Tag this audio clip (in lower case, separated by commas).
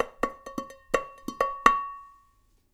domestic sounds, dishes, pots and pans